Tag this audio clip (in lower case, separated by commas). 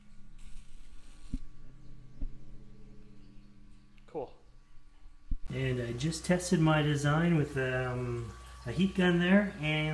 speech